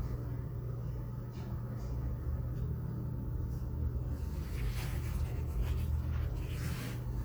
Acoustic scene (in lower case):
crowded indoor space